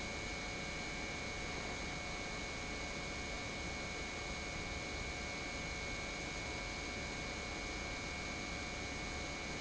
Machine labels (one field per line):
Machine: pump